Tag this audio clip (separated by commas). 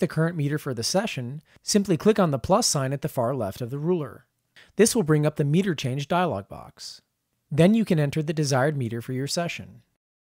Speech